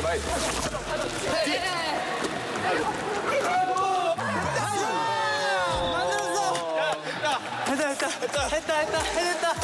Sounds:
playing volleyball

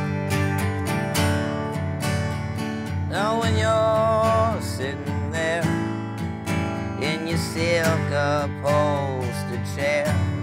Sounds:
Music

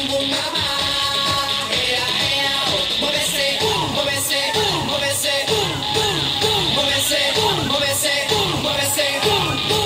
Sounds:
Music

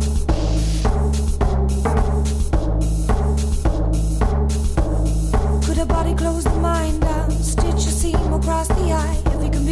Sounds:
Music

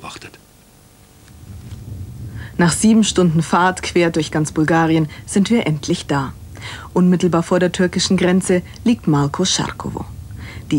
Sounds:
Speech

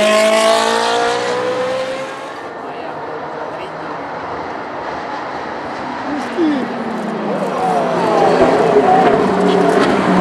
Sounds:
Speech

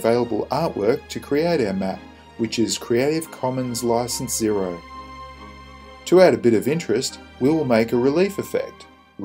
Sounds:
Speech, Music

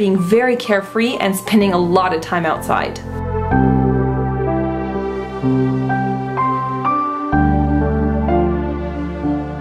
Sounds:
New-age music

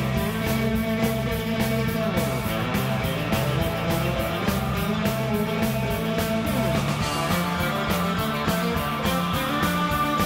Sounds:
Guitar, Music, Musical instrument, Plucked string instrument

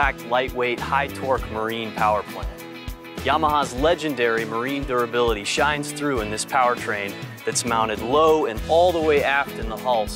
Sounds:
Speech, Music

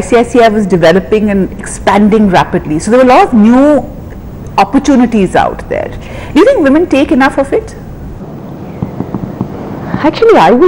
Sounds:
woman speaking, Speech

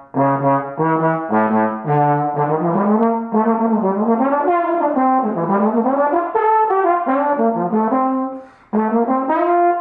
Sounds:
playing trombone

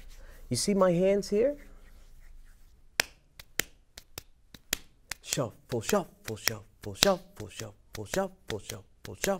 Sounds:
Speech

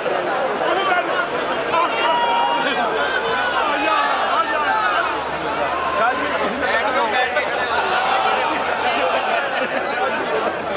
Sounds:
Male speech, Conversation, Speech

